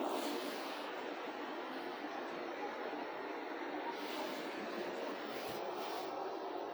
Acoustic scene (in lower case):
residential area